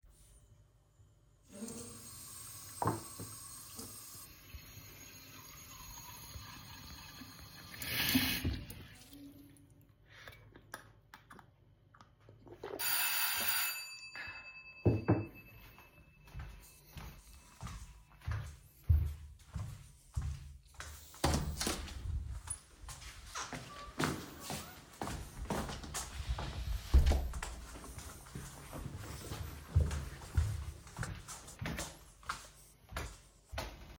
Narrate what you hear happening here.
I poured and drank water, the bell rang and I opened the door